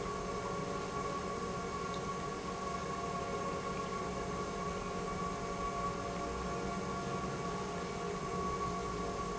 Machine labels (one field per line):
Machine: pump